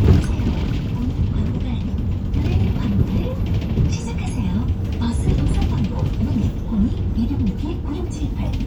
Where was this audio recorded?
on a bus